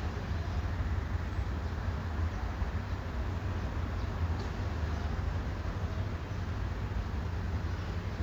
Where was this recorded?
in a residential area